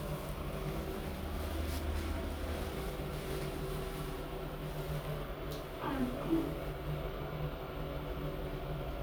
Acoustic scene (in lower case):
elevator